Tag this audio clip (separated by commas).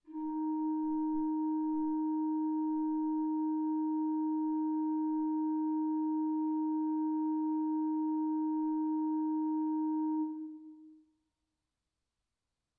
Musical instrument, Organ, Keyboard (musical), Music